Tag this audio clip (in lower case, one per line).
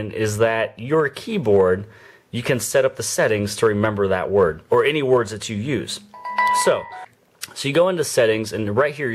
inside a small room
speech